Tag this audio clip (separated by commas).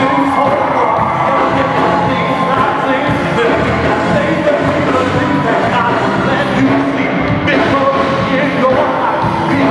Singing, Choir, Music, Gospel music